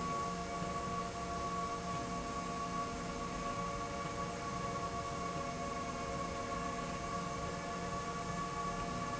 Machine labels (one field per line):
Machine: slide rail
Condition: normal